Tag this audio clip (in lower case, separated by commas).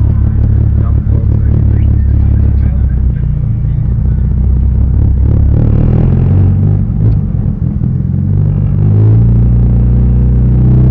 speech, motor vehicle (road), car, vehicle